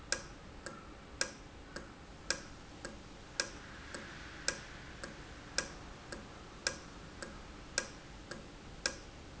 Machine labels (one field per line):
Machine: valve